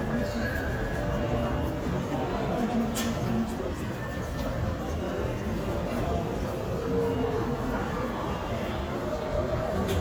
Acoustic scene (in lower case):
crowded indoor space